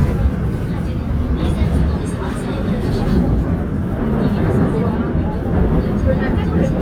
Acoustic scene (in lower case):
subway train